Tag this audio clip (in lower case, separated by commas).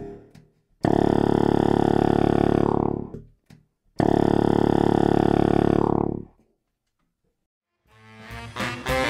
music, saxophone, musical instrument